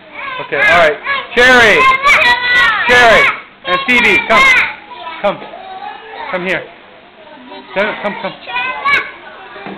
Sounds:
speech, child speech, children playing

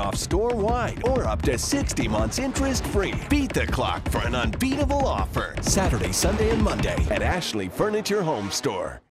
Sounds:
music, speech

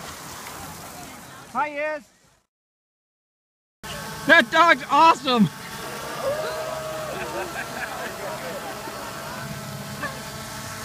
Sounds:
dog, speech, domestic animals

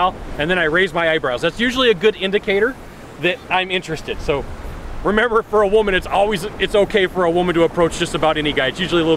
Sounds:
speech

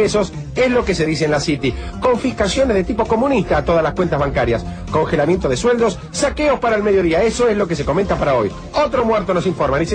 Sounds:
music, speech

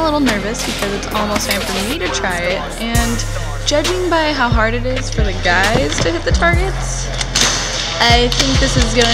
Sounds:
music, speech

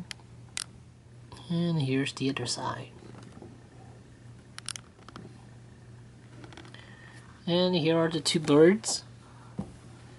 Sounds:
speech

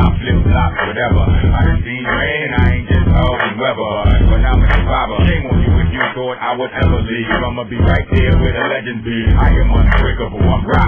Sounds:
music

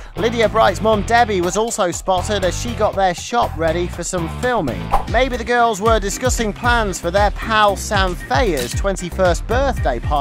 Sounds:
music, speech

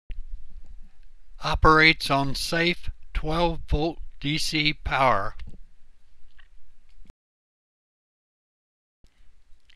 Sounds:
speech

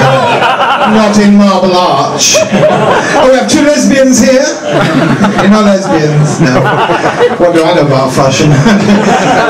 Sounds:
speech

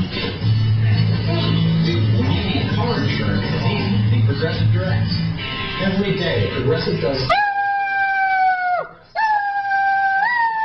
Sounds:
speech, music

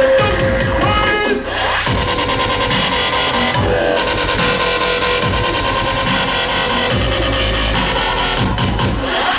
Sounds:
dubstep, music, electronic music

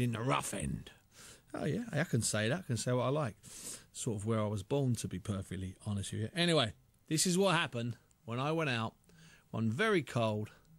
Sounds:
speech

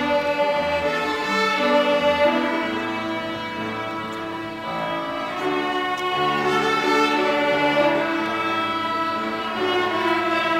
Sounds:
musical instrument, fiddle, music

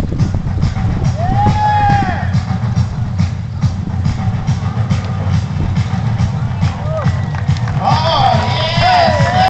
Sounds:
speech, music

